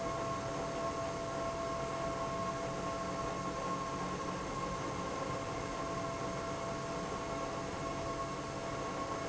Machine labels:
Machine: pump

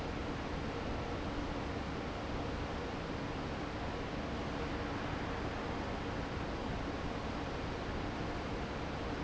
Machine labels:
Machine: fan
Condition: normal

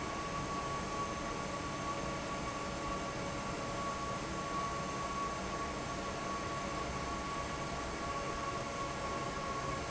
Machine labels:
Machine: fan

